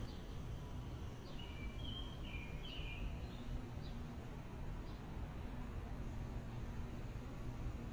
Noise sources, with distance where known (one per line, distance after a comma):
background noise